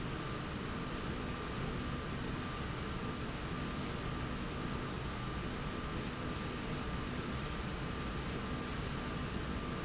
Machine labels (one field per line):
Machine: slide rail